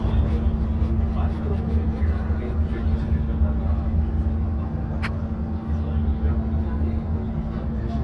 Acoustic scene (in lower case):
bus